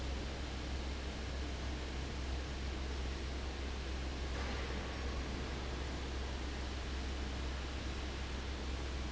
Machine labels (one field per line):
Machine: fan